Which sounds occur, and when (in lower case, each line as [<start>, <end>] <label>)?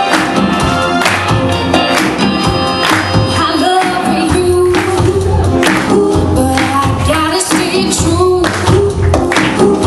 [0.00, 9.85] music
[0.07, 0.42] clapping
[1.00, 1.37] clapping
[1.89, 2.26] clapping
[2.77, 3.15] clapping
[3.26, 9.85] female singing
[3.74, 4.08] clapping
[4.68, 5.13] clapping
[5.60, 5.93] clapping
[6.46, 6.90] clapping
[7.30, 7.75] clapping
[8.35, 9.03] clapping
[9.29, 9.85] clapping